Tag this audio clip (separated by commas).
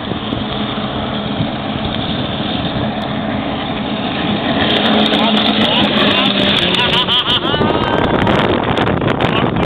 Speech